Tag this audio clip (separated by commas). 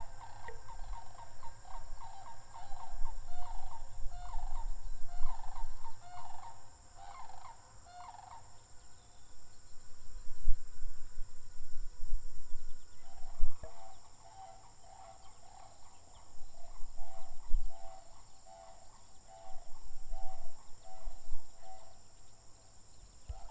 Animal, Cricket, Wild animals, Frog, Insect